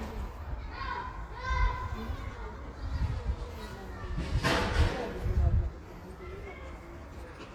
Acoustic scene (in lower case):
residential area